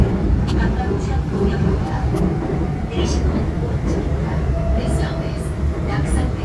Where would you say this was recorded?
on a subway train